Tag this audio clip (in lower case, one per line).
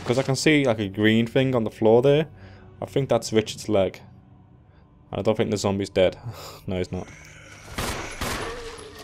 speech